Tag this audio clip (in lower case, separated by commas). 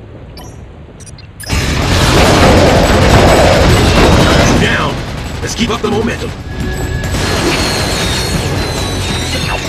speech, music